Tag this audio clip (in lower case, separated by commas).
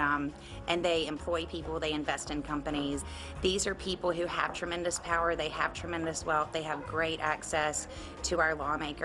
speech